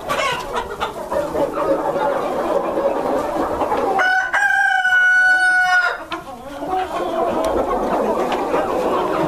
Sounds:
fowl, cock-a-doodle-doo, cluck, chicken

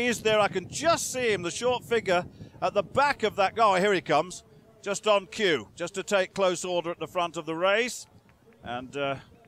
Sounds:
run, outside, urban or man-made, speech

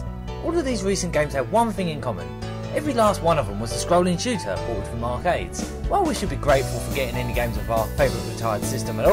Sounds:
music, speech

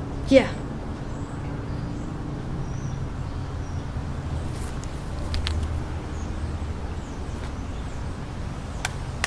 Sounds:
speech

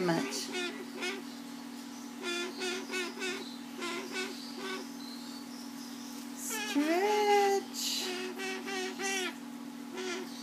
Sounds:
bird, speech

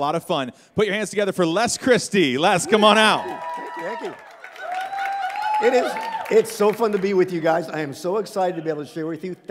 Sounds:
speech

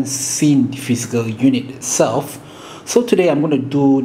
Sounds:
speech

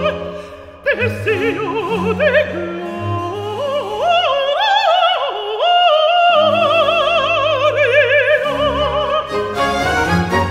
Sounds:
orchestra, music, opera, singing

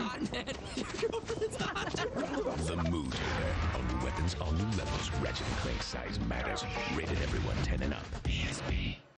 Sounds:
speech, music

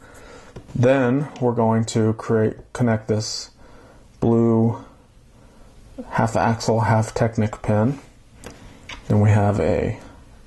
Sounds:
inside a small room, speech

